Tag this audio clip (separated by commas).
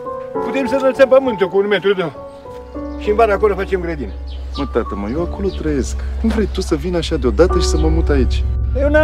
Music, Speech